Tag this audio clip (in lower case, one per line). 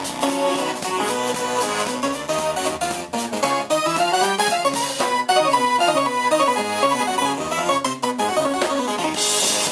music